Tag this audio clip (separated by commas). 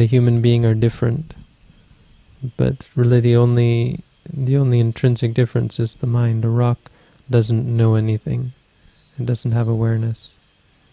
Speech